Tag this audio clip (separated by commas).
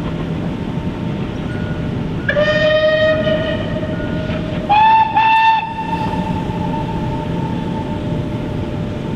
Train, Rail transport, Train whistle